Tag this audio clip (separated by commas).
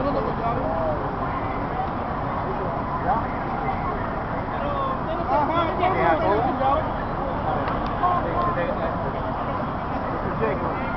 Speech